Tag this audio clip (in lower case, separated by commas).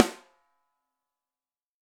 musical instrument, percussion, drum, music